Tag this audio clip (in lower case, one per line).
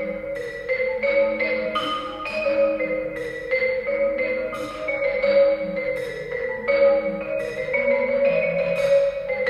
music
xylophone